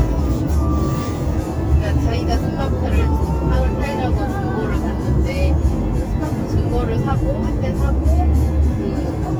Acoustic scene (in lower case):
car